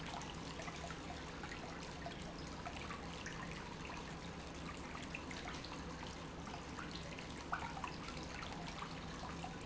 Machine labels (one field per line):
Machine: pump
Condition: normal